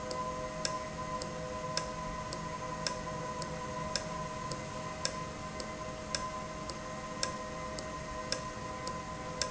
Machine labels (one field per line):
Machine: valve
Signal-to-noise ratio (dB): -6 dB